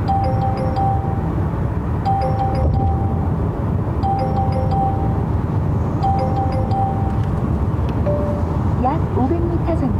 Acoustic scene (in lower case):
car